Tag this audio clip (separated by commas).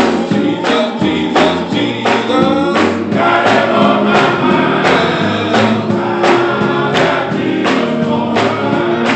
Choir, Music, Male singing